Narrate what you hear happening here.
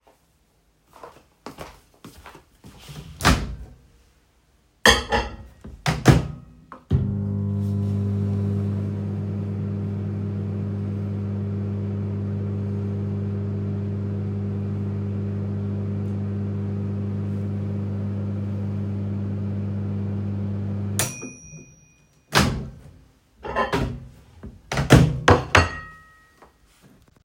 I walked to the microwave, opened it, put the plate in it. Then I closed the microwave, started heating and when it has finished I got the plate uot of it and put it on the table